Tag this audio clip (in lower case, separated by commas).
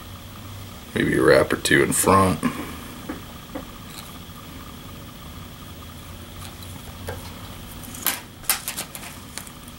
speech